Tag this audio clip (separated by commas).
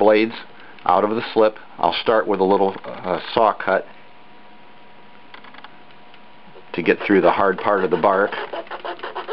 Speech